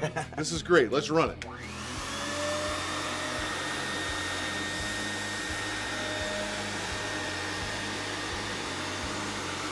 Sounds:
vacuum cleaner, speech, music

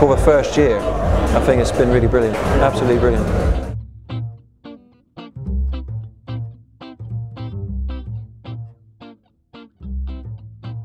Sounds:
music, speech

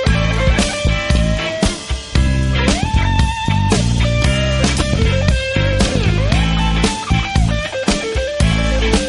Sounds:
psychedelic rock, music

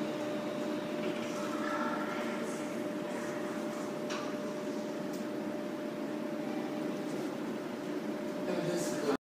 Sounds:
sliding door

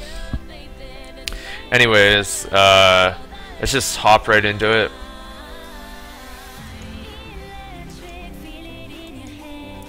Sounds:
music, speech

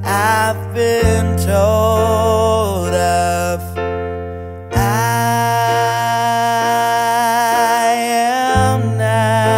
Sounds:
music

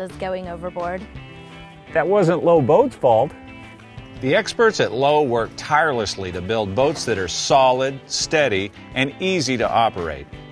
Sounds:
speech, music

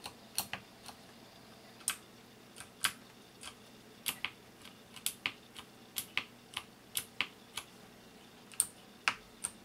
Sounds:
computer keyboard, typing, typing on computer keyboard

